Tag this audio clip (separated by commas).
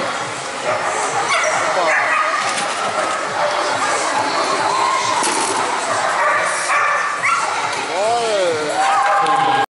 Run, Speech